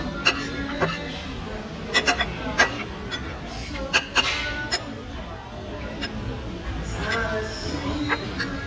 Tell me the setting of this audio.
restaurant